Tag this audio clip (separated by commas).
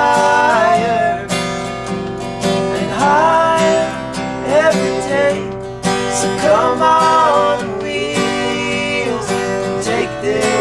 Music, Male singing